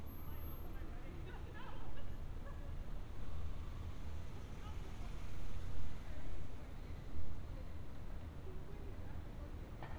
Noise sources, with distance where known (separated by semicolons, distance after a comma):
engine of unclear size; person or small group talking, far